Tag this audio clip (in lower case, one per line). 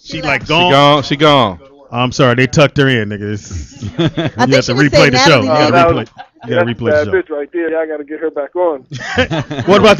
speech
radio